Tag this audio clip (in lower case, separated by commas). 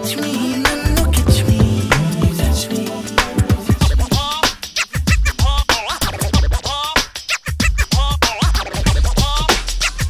scratching (performance technique)